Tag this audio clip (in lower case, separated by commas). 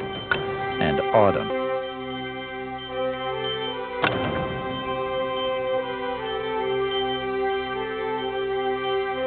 speech, music